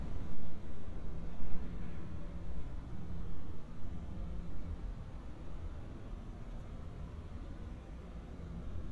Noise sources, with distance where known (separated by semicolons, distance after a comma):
background noise